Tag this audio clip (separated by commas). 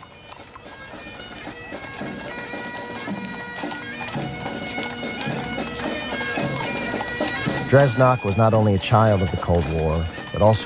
Music, Speech, Bagpipes